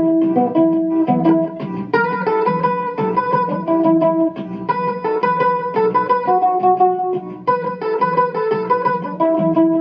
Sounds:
playing mandolin

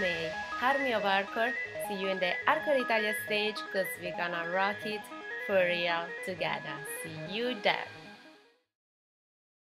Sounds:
music
speech

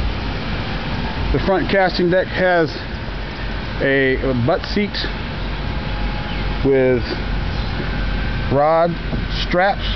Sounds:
speech

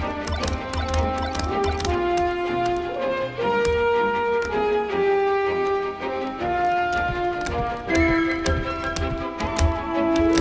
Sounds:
music

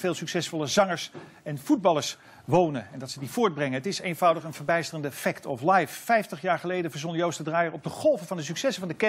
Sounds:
speech

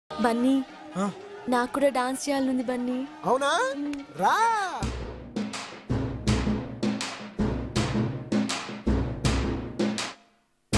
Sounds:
timpani
music
speech

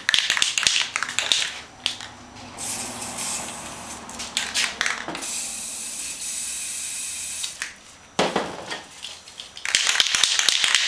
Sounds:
spray

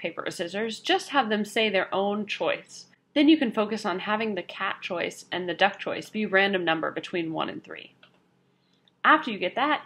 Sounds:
speech

